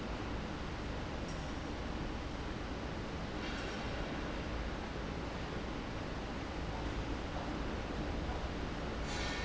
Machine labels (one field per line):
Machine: fan